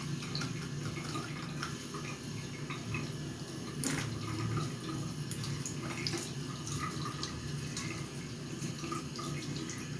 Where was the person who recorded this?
in a restroom